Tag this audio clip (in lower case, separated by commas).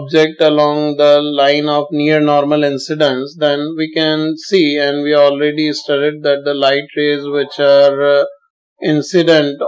speech